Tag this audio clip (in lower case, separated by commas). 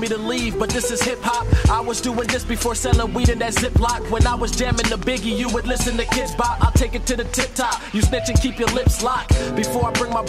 hip hop music, rapping, music